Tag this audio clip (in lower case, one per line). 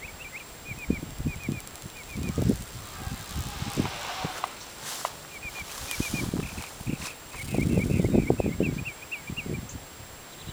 outside, rural or natural